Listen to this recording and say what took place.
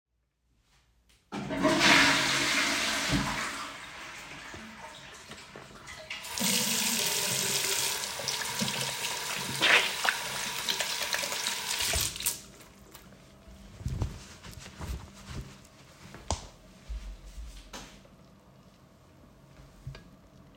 I flushed the toilet and then washed my hands after using soap from the dispenser. Then I dried my hands with a towel. Finally, I left the bathroom switching off the light.